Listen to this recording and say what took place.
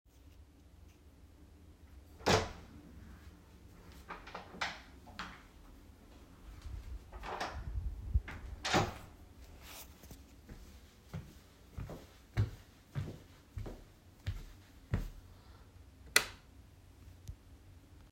I opened my door, walked inside the room and turned on the light with the light switch.